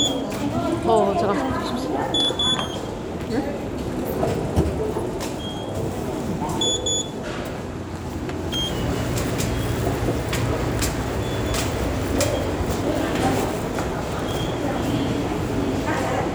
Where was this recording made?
in a subway station